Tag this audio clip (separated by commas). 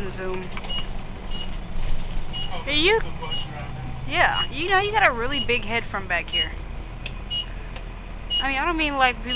Speech, Vehicle